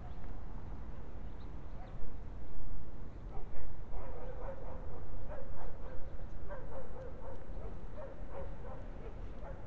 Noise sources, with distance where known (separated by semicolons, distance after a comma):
dog barking or whining, far